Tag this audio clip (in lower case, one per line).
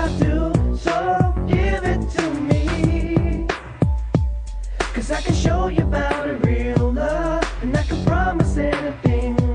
music